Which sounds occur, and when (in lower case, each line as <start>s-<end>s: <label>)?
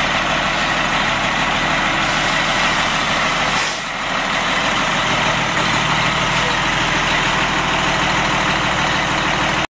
0.0s-9.6s: wind
0.0s-9.6s: heavy engine (low frequency)